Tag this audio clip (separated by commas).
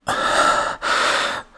Breathing, Respiratory sounds